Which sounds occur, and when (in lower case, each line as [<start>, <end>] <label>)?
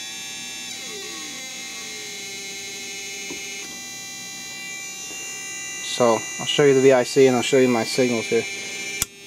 [0.00, 9.25] chirp tone
[0.00, 9.25] mechanisms
[5.09, 5.15] tap
[9.02, 9.08] tick